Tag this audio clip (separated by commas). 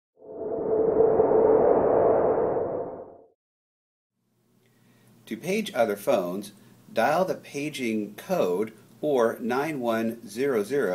Speech